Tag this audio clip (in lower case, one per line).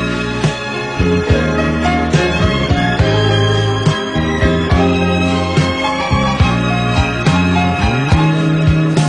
soul music